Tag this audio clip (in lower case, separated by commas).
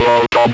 human voice, speech